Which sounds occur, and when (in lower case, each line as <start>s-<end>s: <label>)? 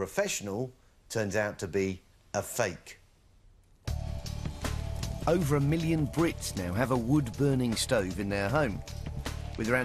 0.0s-1.5s: man speaking
1.6s-1.8s: breathing
1.8s-4.7s: man speaking
4.7s-5.0s: breathing
5.0s-6.2s: man speaking
6.3s-6.5s: breathing
6.5s-7.7s: man speaking
7.9s-9.2s: man speaking
9.4s-9.8s: man speaking